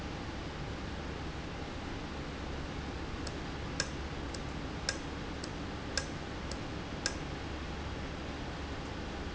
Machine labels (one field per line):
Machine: valve